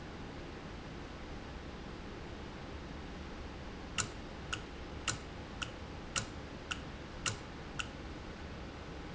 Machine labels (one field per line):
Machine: valve